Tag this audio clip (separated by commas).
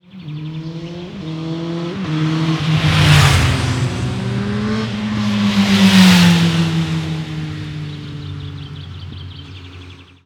Vehicle, Motor vehicle (road), Motorcycle